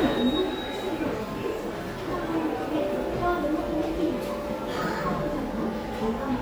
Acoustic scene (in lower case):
subway station